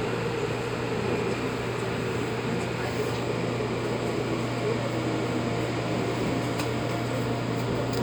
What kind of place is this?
subway train